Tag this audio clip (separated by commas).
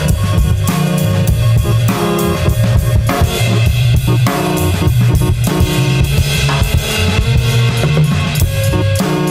Music